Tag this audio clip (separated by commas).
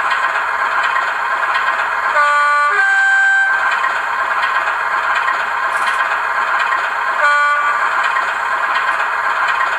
Crackle, Clatter